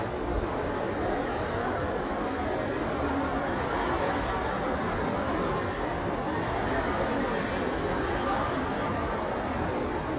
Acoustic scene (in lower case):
crowded indoor space